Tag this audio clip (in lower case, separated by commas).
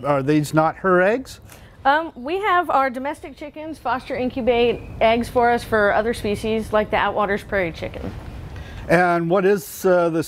speech